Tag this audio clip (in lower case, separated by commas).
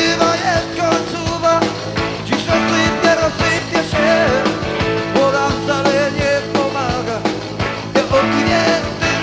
music, ska, singing